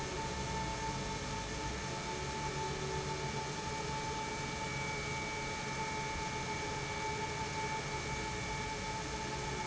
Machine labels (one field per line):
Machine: pump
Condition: normal